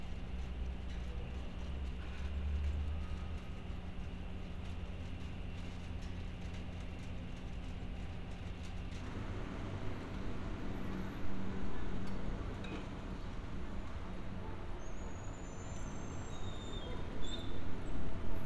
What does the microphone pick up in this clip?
background noise